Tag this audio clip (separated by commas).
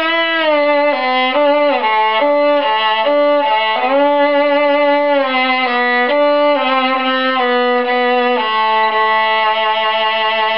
Music, Violin, Musical instrument